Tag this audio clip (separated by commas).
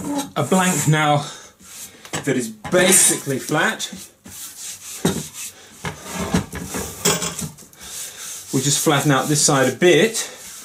Tools, Speech, Wood